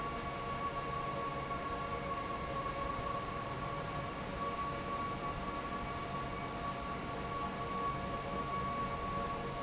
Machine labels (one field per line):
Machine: fan